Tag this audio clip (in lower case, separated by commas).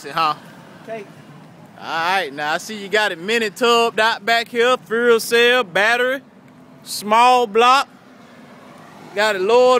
speech, vehicle